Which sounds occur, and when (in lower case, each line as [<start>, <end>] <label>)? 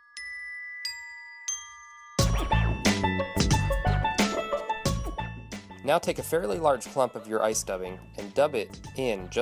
[0.00, 9.41] music
[5.76, 7.94] male speech
[8.11, 9.41] male speech